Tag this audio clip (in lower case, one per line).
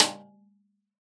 snare drum
percussion
drum
musical instrument
music